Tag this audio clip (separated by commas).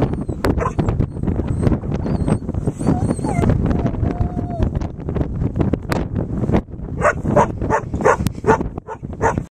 pets, Animal, Dog